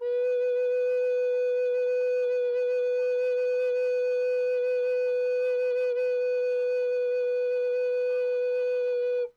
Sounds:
Wind instrument, Music, Musical instrument

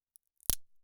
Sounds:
Crack

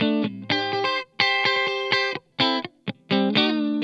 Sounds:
Music, Plucked string instrument, Electric guitar, Musical instrument, Guitar

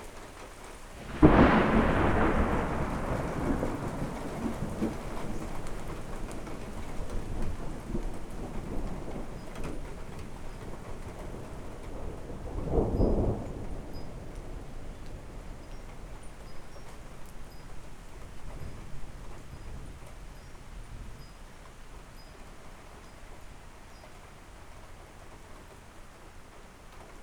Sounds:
Thunderstorm, Thunder

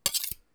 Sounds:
silverware, Domestic sounds

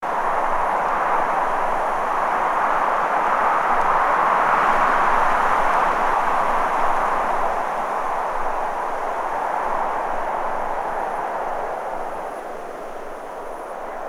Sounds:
Wind

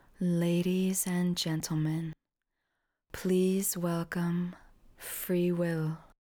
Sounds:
Human voice, Female speech, Speech

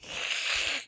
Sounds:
Cat, pets, Hiss, Animal

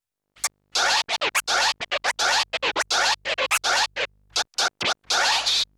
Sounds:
Scratching (performance technique), Music, Musical instrument

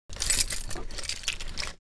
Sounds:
home sounds, Keys jangling

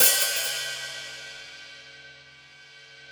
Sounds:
Music, Cymbal, Percussion, Hi-hat, Musical instrument

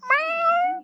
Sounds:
Meow, Domestic animals, Animal, Cat

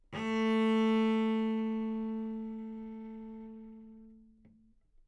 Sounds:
Musical instrument, Bowed string instrument, Music

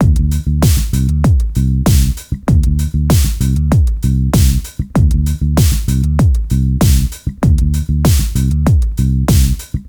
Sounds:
Guitar, Music, Musical instrument, Bass guitar, Plucked string instrument

